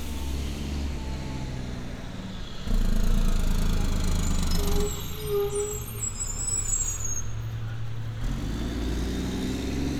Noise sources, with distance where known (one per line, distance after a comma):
large-sounding engine, near